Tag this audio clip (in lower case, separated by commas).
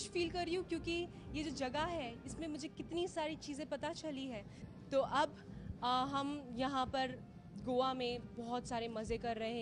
speech